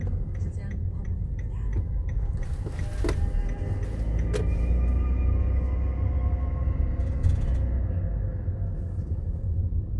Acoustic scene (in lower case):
car